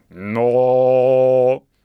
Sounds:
human voice, singing, male singing

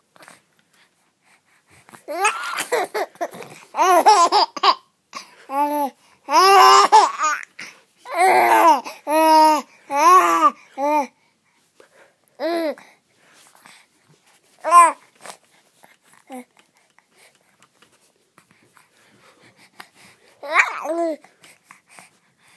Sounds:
laughter, human voice

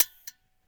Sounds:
mechanisms

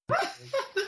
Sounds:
laughter, human voice

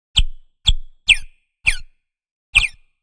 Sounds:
bird, animal, wild animals, tweet, bird song

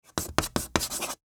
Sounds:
writing, home sounds

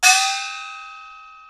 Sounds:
musical instrument, percussion, gong, music

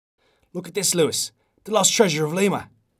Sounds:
human voice, speech

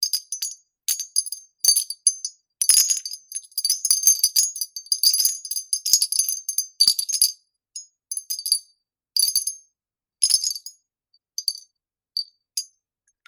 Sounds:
bell, wind chime, chime

